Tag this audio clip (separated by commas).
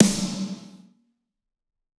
Musical instrument, Percussion, Music, Drum, Snare drum